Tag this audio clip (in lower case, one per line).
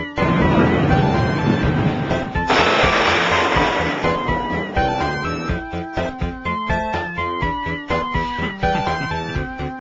music